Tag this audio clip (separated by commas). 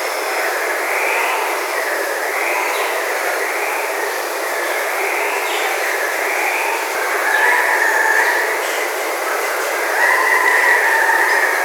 Water